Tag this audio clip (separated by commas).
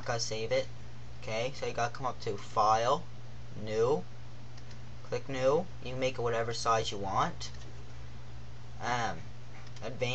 Speech